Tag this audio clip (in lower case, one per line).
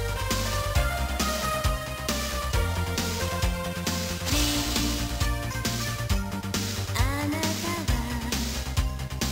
music